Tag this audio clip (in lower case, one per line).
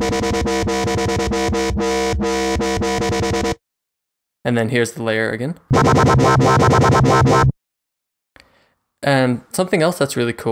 dubstep
speech
music